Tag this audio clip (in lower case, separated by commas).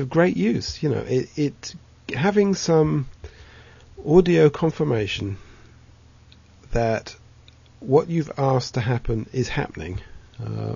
speech